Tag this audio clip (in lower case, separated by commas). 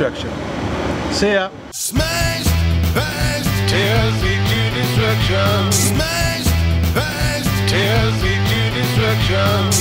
music, speech